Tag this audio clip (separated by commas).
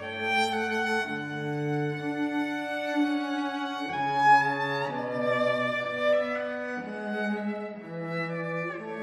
Cello, Music, Musical instrument